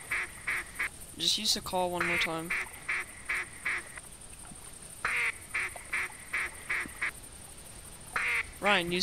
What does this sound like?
Male speaking and duck quacking in background